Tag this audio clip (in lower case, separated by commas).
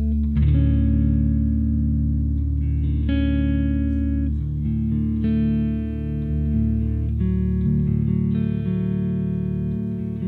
guitar, plucked string instrument, music, musical instrument, inside a large room or hall, echo